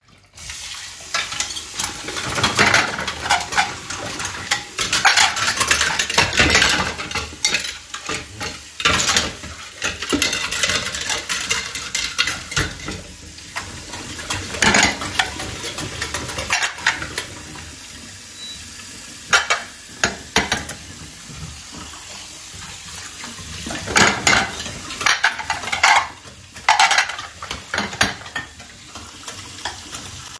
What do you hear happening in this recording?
The phone was placed statically in the kitchen. Running water can be heard from the sink while dishes and cutlery are handled nearby. Both target events are clearly audible in the same scene.